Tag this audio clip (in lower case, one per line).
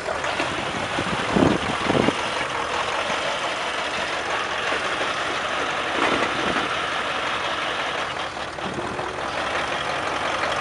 truck
vehicle